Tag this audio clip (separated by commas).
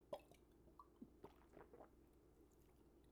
Water, Liquid